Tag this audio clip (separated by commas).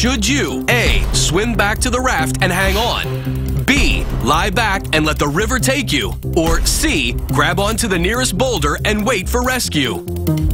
Speech, Music